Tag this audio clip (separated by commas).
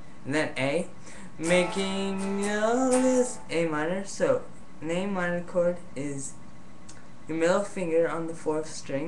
Speech, Electric guitar, Plucked string instrument, Guitar, Musical instrument, Music